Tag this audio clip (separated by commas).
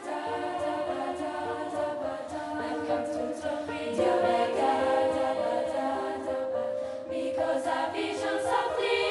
Music